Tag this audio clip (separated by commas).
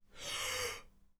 Respiratory sounds, Breathing